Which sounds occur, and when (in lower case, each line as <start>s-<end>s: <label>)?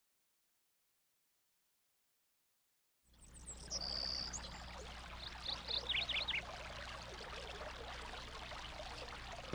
3.0s-9.5s: stream
3.0s-9.5s: mechanisms
3.1s-4.8s: tweet
5.2s-5.3s: tweet
5.4s-5.6s: tweet
5.6s-5.8s: tweet
5.9s-6.4s: tweet